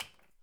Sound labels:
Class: object falling